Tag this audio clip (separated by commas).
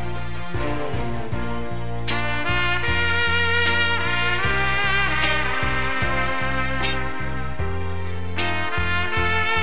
Music